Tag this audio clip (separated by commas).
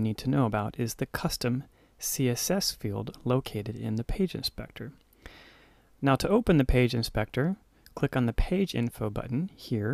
Speech